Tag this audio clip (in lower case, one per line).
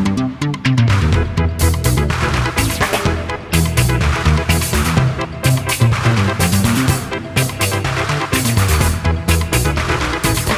music